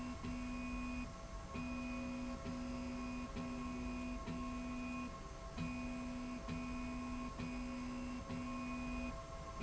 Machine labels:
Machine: slide rail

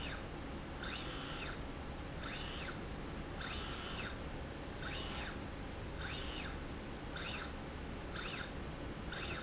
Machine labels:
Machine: slide rail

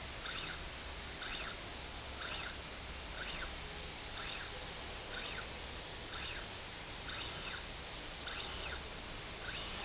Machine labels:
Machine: slide rail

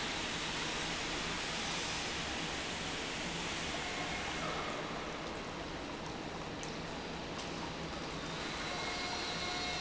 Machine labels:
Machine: pump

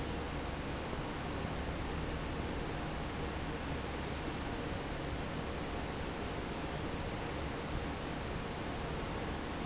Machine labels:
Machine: fan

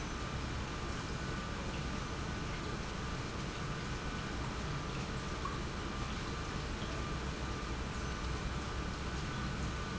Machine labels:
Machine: pump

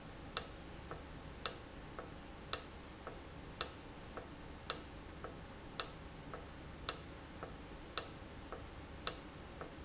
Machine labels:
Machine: valve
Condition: normal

